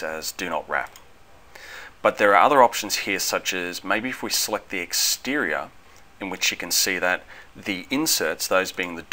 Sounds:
Speech

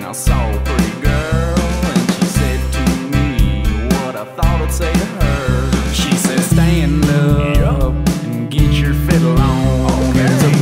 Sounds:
Soul music, Funk, Music, Rhythm and blues

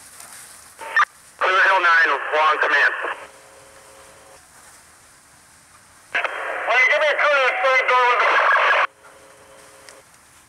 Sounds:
outside, urban or man-made, Speech, Fire

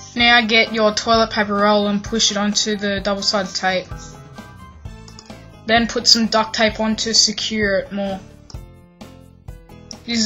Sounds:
Speech, Music

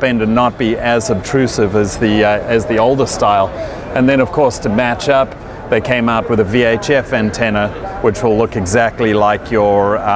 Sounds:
Speech

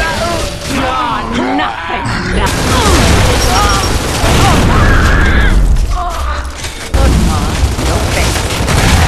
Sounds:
Fusillade, Speech, Boom

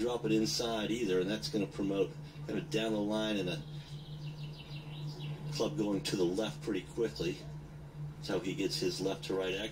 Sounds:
Speech

